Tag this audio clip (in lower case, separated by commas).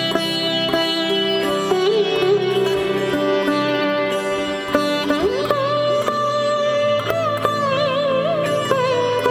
playing sitar